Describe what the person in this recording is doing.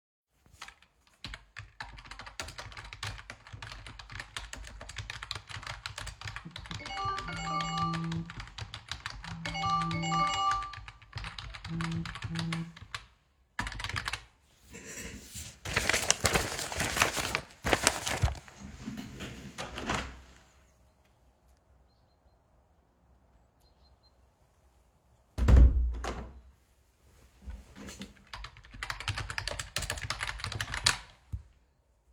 While I was typing on my keyboard, my phone started to ring. After it stopped ringing, I stopped typing. I moved the chair and looked through my papers. Then I opened the window next to me. The birds could be heard chirping outside. I closed the window again and started typing again.